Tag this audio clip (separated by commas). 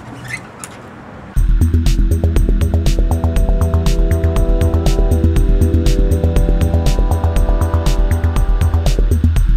Music